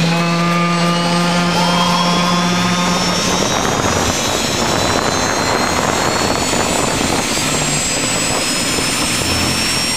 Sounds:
outside, rural or natural, Aircraft, Vehicle, Helicopter

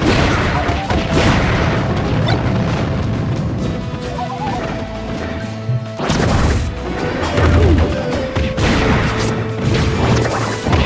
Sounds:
Music

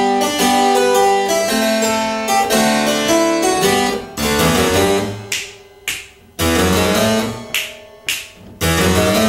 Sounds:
playing harpsichord

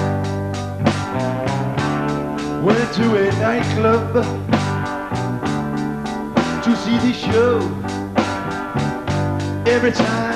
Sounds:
Blues, Music

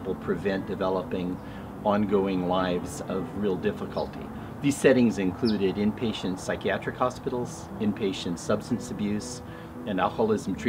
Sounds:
Music, Speech

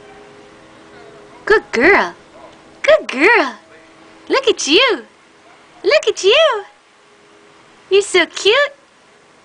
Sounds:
Speech

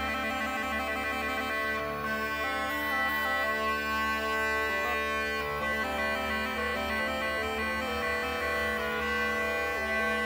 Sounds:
playing bagpipes

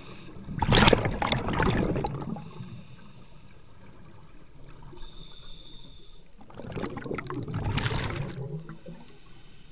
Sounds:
scuba diving

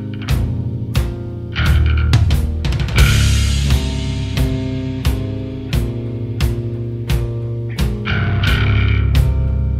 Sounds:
Progressive rock, Music, Grunge

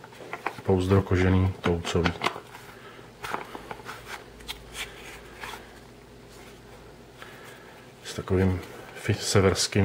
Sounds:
Speech, inside a small room

